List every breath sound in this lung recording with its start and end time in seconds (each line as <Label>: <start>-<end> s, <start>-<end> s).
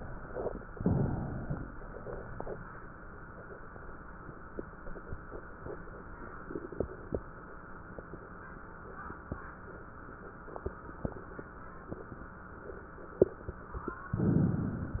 Inhalation: 0.70-1.84 s, 14.12-15.00 s